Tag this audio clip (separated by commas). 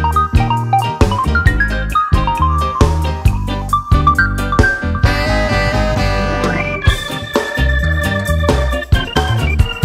Music